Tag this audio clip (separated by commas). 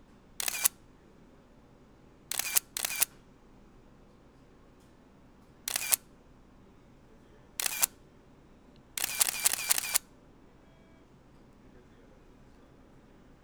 Camera, Mechanisms